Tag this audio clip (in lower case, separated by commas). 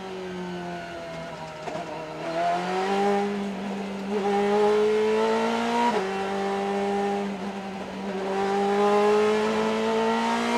car, vehicle, motor vehicle (road)